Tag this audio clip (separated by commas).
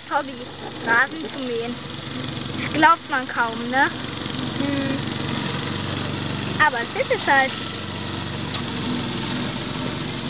lawn mowing